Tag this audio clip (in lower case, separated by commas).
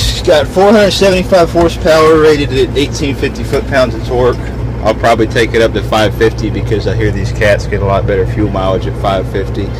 truck, vehicle, speech